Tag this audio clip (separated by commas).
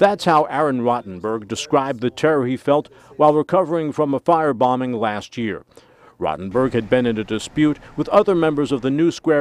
Speech, Vehicle